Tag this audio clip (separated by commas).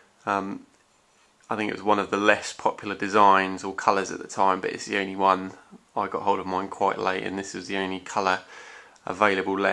Speech